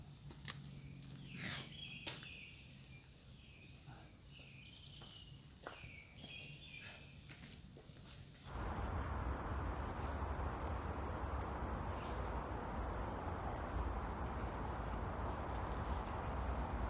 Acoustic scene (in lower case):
park